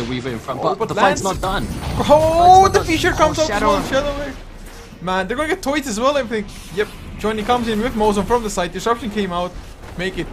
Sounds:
speech

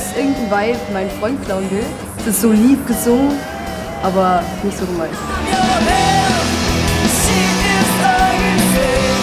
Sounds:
speech
music

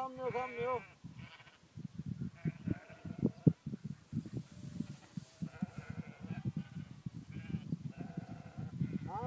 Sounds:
bleat
speech
sheep

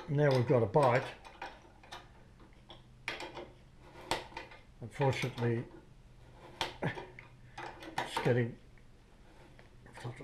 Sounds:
tools
speech

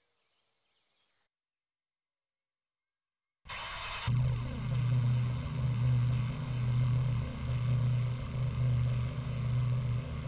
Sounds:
car
vehicle
heavy engine (low frequency)

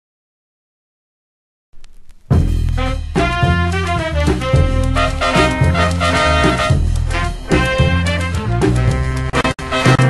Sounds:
music

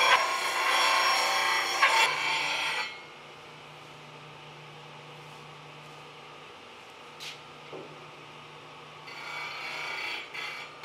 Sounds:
lathe spinning

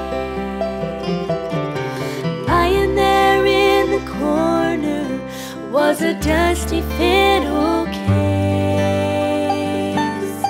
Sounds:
music
musical instrument

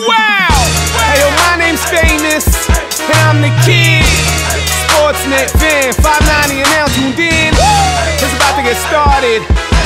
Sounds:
music

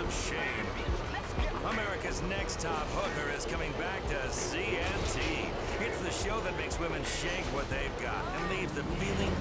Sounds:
speech

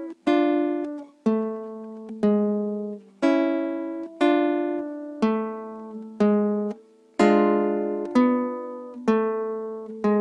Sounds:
musical instrument
plucked string instrument
guitar
acoustic guitar
music

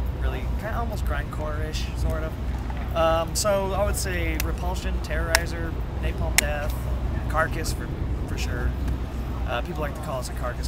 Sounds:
speech

